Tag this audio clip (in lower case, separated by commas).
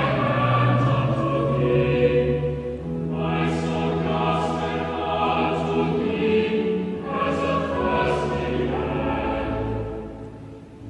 song, music, chant, choir, opera